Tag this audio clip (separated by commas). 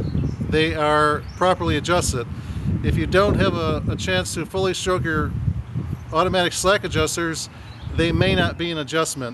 Speech